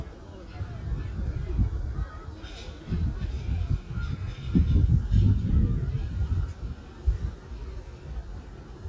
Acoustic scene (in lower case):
residential area